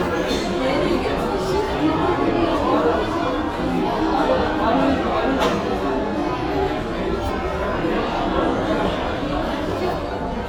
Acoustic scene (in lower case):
restaurant